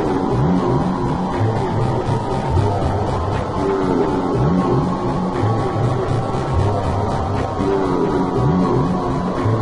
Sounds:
Music

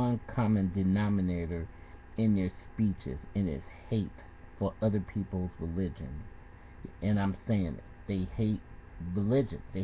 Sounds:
man speaking, Speech

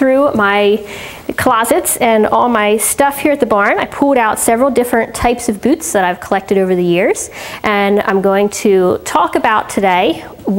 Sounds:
Speech

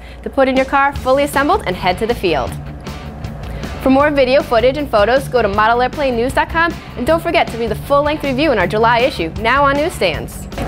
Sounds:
Music, Speech

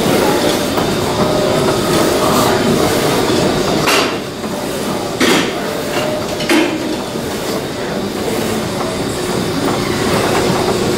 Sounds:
inside a large room or hall

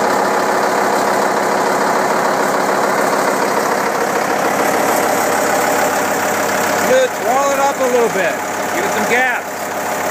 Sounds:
Speech

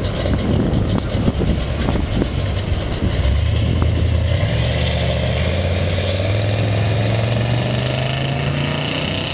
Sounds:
Car, Vehicle, Idling, Accelerating, Motor vehicle (road)

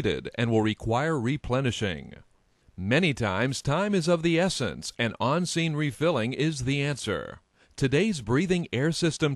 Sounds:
Speech

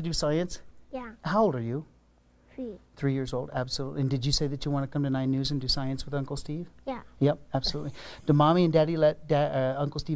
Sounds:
Speech

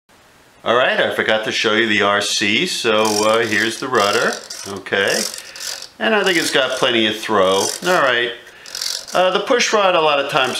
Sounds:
Speech, inside a small room

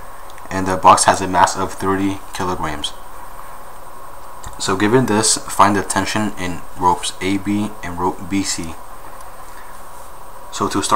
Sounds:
Speech

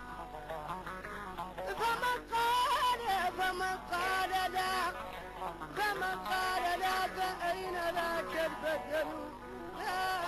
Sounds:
Music, Independent music

